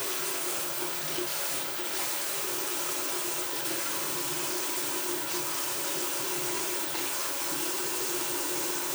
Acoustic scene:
restroom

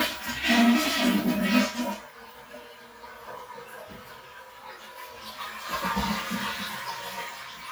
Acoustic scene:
restroom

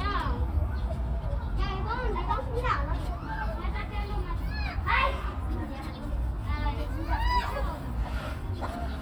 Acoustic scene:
park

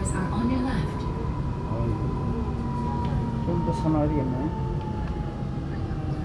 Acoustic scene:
subway train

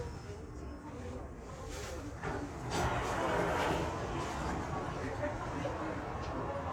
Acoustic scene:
subway train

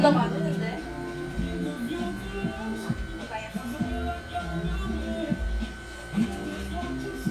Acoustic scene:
crowded indoor space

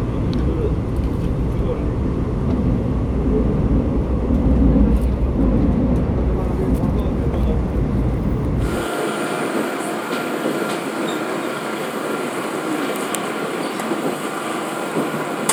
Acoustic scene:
subway train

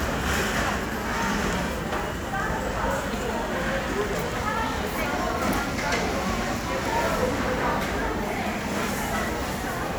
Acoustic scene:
crowded indoor space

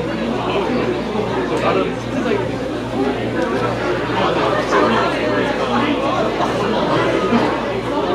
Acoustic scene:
crowded indoor space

